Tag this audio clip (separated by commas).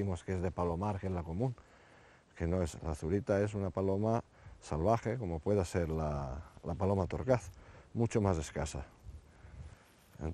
Speech